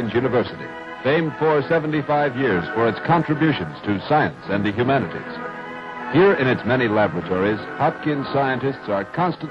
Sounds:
Speech, Music

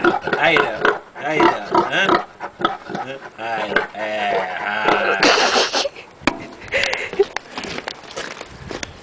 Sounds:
pig oinking

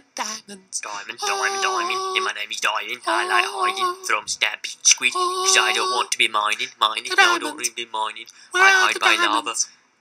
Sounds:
Speech

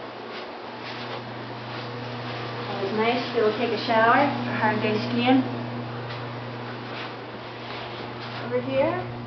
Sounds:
Speech

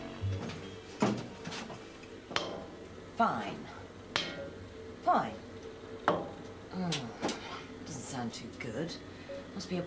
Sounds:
Speech

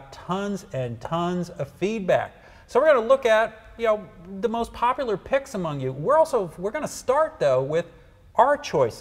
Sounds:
Speech

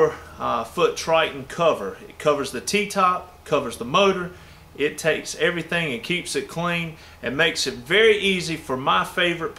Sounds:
Speech

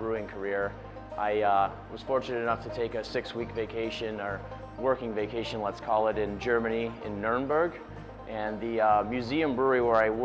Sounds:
Speech, Music

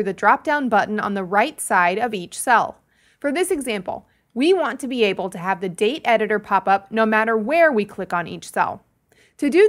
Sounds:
Speech

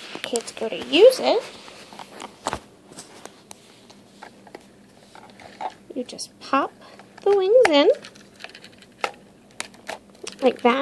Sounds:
Speech

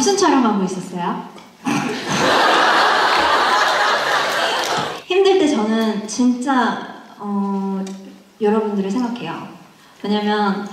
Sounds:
Speech

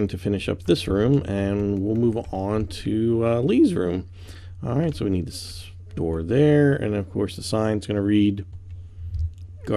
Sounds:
Speech

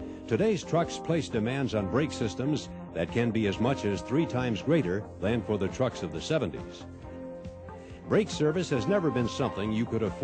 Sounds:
Speech, Music

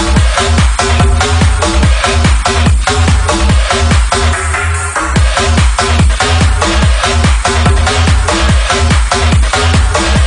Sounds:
Music, Techno, Electronic music

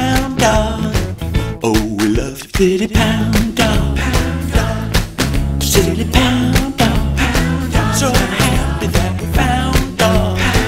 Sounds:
Happy music, Music

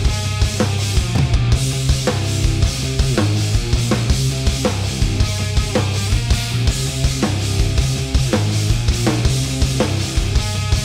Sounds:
Music

